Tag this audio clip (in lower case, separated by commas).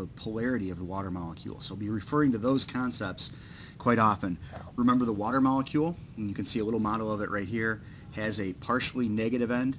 speech